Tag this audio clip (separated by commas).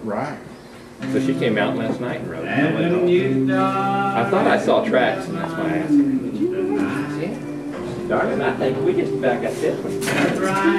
Speech, Music